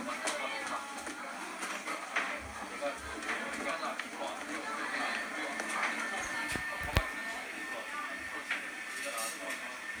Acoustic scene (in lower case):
cafe